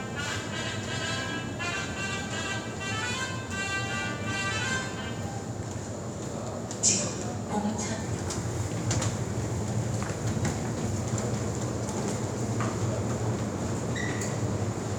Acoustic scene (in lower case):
subway station